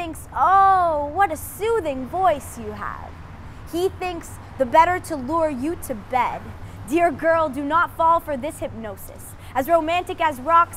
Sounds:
speech

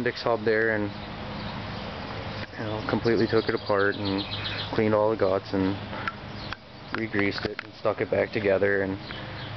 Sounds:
speech

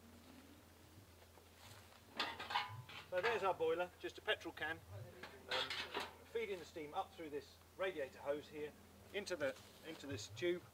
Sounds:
speech

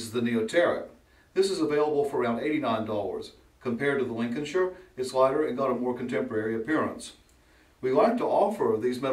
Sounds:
speech

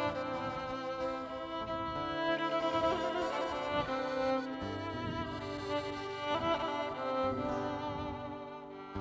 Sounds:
music

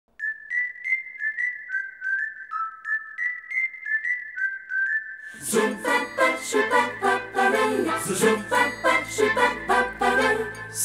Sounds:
singing

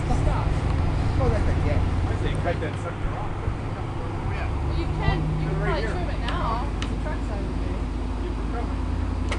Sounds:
roadway noise, vehicle

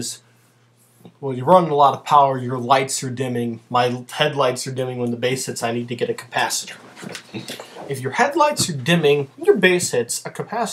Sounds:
speech

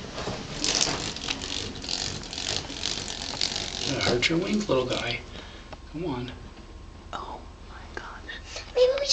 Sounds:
bird, speech

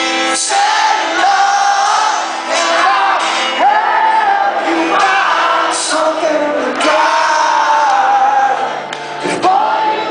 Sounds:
music

